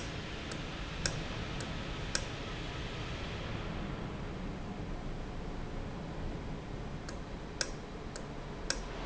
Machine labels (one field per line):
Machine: valve